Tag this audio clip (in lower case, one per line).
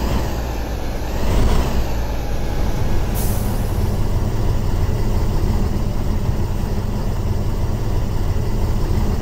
vehicle
truck